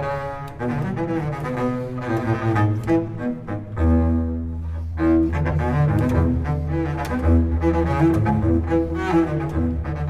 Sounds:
playing double bass

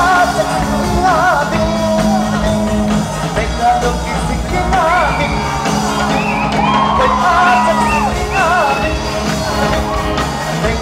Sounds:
music

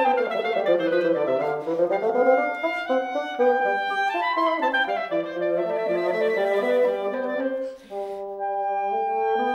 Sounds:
clarinet
playing clarinet

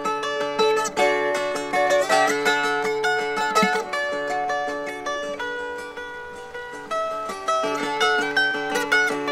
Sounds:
ukulele
musical instrument
music

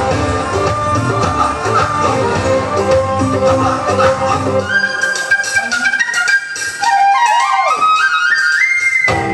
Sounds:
flute
woodwind instrument

